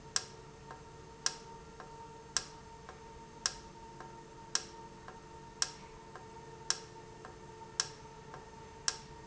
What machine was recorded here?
valve